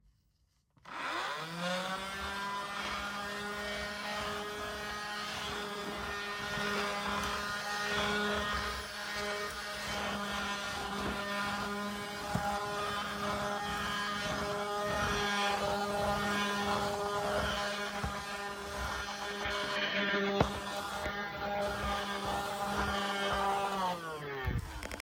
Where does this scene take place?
bedroom